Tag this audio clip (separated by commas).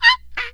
Wood